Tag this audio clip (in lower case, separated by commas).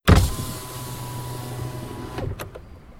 motor vehicle (road), vehicle, car